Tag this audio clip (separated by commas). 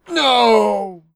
Human voice, man speaking, Speech